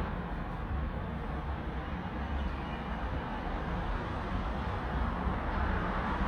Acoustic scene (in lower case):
street